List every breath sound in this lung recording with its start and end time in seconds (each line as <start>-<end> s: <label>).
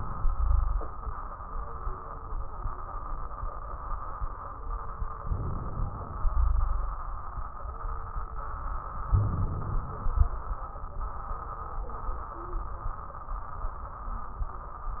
5.18-6.20 s: crackles
5.21-6.24 s: inhalation
6.25-7.21 s: exhalation
6.25-7.21 s: wheeze
9.04-10.00 s: crackles
9.07-10.04 s: inhalation
10.00-10.65 s: exhalation
10.01-10.66 s: crackles